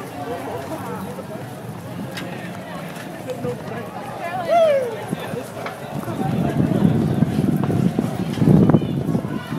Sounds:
Crowd

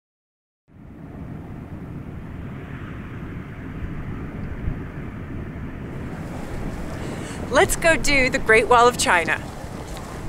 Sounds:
Speech, outside, rural or natural

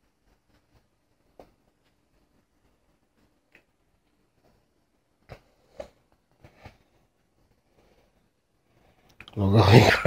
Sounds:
Speech

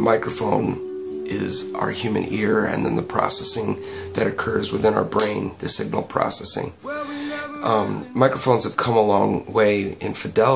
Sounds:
Speech, Music

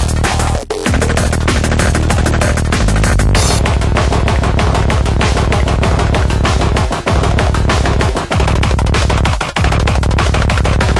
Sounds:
Music

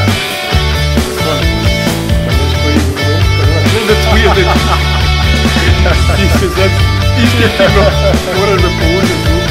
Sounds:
Music, Speech

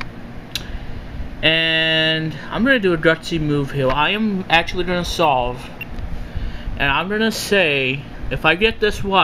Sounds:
Speech

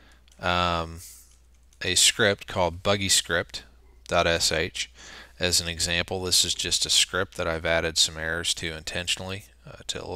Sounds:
Speech

